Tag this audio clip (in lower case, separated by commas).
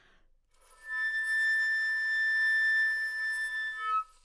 wind instrument, music, musical instrument